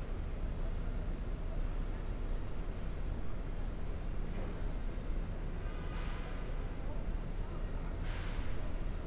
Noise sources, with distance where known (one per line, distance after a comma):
car horn, far
unidentified human voice